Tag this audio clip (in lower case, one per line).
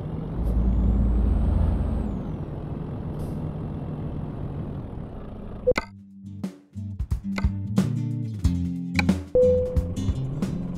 truck
music